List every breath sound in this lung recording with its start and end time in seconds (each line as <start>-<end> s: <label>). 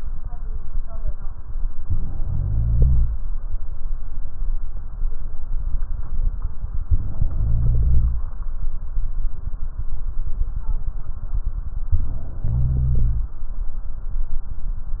2.15-3.19 s: inhalation
7.21-8.25 s: inhalation
12.39-13.43 s: inhalation